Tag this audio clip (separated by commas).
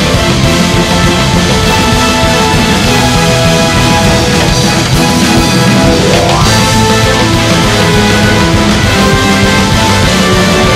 Soundtrack music, Theme music, Music, Exciting music